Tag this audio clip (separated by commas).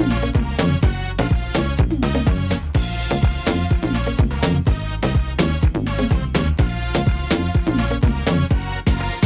Electronica, Trance music, Techno, Electronic music, Music, Electronic dance music, Dubstep, Dance music